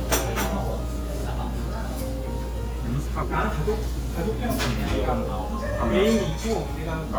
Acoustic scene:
crowded indoor space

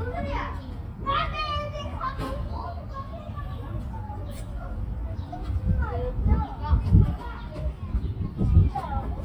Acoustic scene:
park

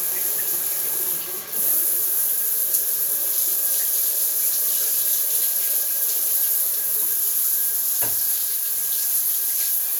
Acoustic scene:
restroom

